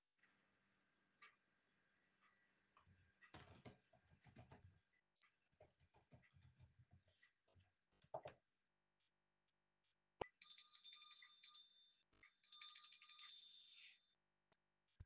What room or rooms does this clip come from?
office